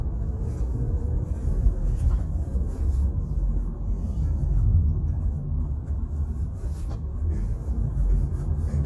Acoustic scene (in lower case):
car